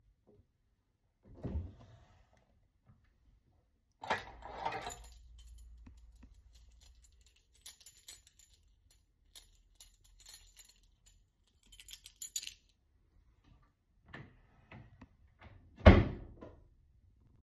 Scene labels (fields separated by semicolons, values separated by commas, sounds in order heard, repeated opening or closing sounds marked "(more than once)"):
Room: bedroom; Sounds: wardrobe or drawer (more than once), keys